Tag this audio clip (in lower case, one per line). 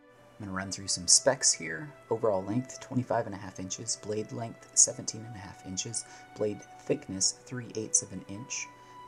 speech
music